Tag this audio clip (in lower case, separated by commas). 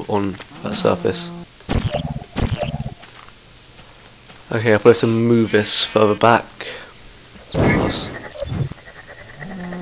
outside, rural or natural, speech